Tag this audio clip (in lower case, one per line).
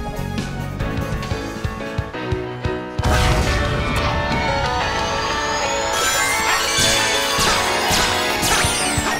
music